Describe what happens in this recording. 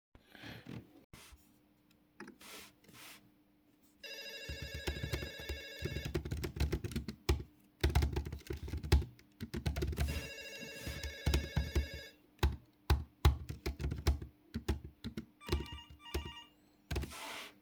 Phone starts ringing at the same time as i begin tiping on a keyboard